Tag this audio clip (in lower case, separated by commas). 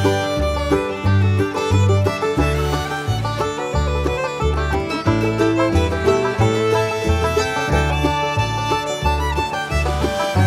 music